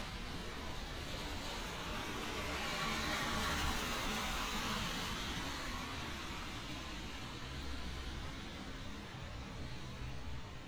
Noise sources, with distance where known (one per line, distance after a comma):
medium-sounding engine, near